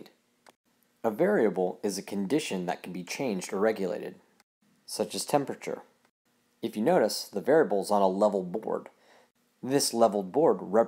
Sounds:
speech

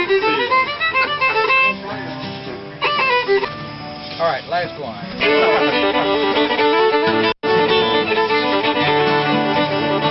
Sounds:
musical instrument, music, violin, pizzicato, speech

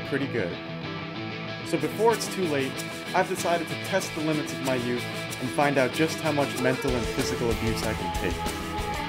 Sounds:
speech, inside a small room, music

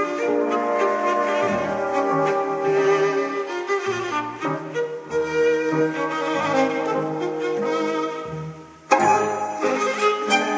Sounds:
music, tender music

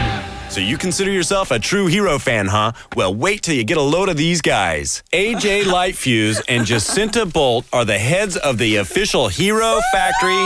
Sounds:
speech, music

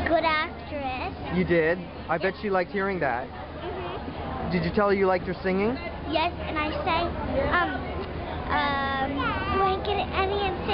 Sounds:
kid speaking, inside a large room or hall, speech

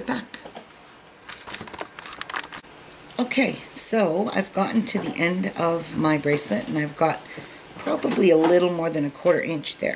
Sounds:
speech

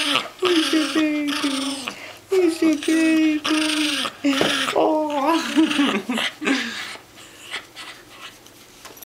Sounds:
whimper (dog), domestic animals, speech, animal, dog

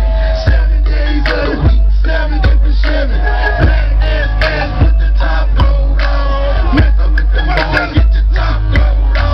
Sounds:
music

